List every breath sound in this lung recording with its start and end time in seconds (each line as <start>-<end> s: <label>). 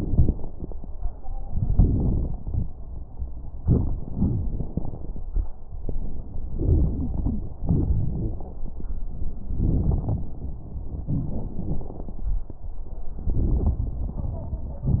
0.00-0.66 s: exhalation
0.00-0.66 s: crackles
1.39-2.62 s: inhalation
1.39-2.62 s: crackles
3.61-5.22 s: exhalation
4.12-4.67 s: wheeze
6.52-7.53 s: inhalation
6.52-7.53 s: wheeze
7.64-8.66 s: exhalation
7.64-8.66 s: wheeze
9.53-10.47 s: inhalation
9.53-10.47 s: crackles
11.04-12.33 s: exhalation
11.04-12.33 s: crackles
13.15-14.82 s: inhalation
13.15-14.82 s: crackles